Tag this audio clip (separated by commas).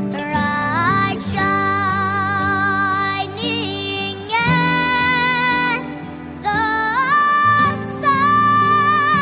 child singing